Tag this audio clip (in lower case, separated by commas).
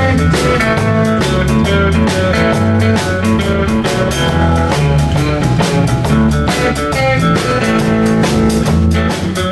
strum, bass guitar, acoustic guitar, music, guitar, plucked string instrument, musical instrument